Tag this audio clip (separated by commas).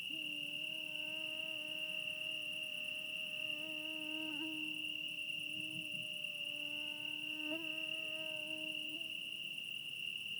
Wild animals, Insect, Cricket, Animal